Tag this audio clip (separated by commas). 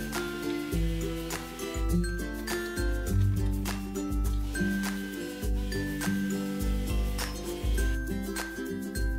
Music